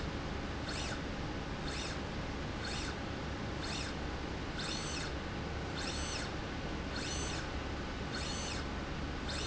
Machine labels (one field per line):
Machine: slide rail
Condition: normal